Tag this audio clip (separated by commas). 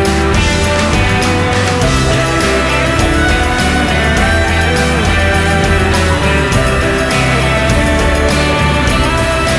Music